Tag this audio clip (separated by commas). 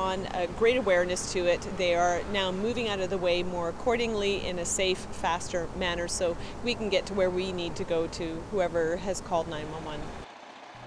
Speech